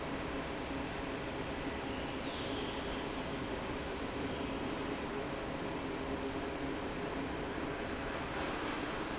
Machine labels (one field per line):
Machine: fan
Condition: normal